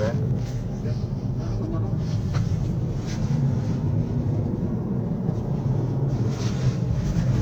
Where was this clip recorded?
in a car